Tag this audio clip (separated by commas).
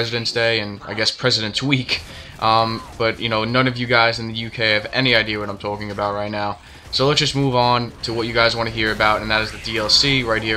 Speech